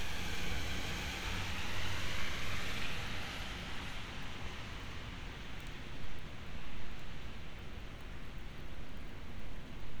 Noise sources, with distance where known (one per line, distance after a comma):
engine of unclear size, near